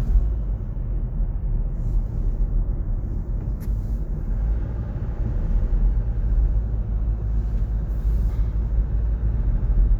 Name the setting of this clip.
car